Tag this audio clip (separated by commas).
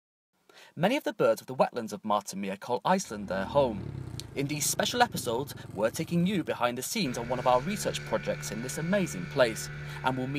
Speech